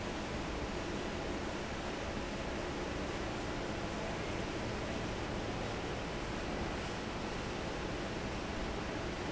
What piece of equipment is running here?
fan